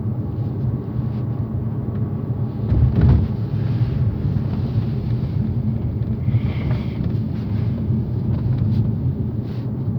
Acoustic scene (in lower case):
car